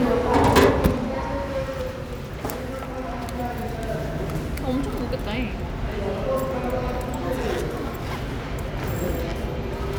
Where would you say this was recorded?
in a subway station